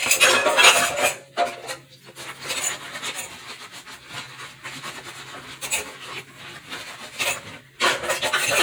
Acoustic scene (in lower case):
kitchen